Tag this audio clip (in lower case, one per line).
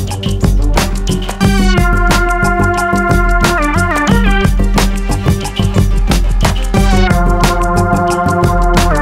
music